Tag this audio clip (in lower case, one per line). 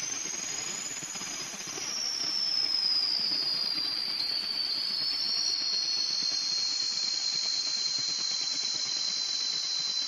inside a large room or hall